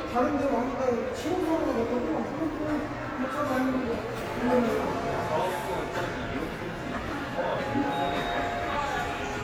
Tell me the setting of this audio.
subway station